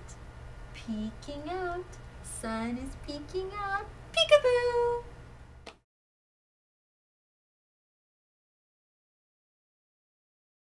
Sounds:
Speech

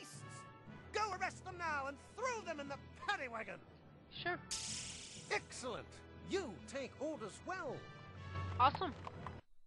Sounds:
Speech, Music

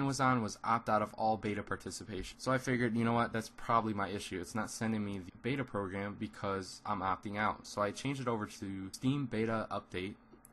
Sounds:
Speech

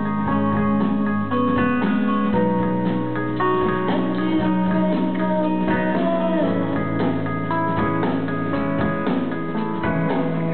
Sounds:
Music

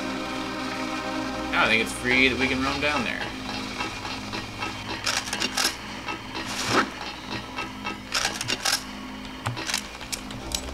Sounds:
Music, Speech

